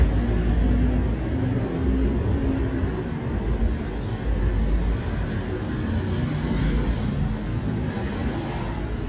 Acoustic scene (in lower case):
residential area